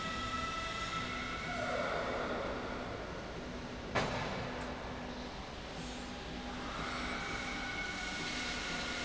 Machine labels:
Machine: slide rail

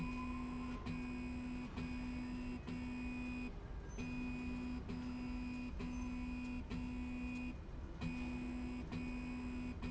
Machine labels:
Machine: slide rail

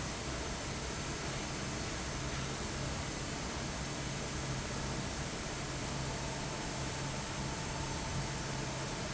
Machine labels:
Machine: fan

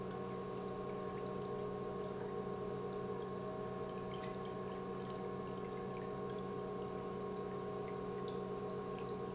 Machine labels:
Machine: pump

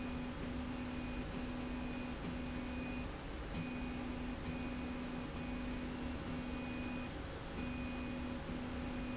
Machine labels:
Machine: slide rail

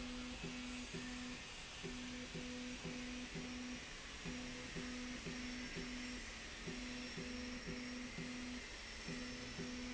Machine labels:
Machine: slide rail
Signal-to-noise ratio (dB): 6 dB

